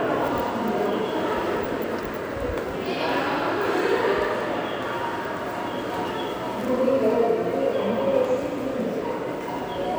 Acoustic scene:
subway station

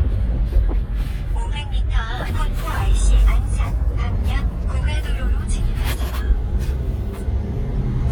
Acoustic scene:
car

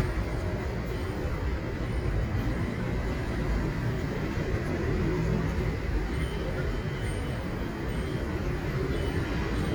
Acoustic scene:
street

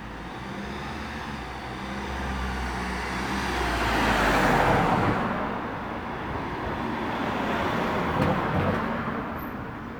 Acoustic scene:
residential area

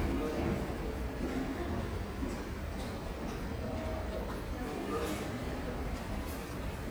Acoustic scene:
elevator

